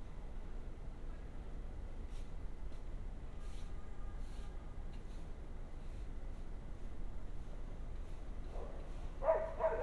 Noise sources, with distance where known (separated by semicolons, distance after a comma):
dog barking or whining, near